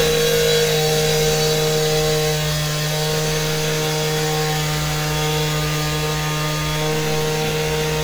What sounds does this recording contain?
unidentified powered saw